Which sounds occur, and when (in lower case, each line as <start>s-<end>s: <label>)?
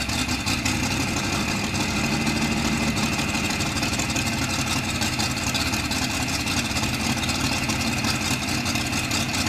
0.0s-9.4s: idling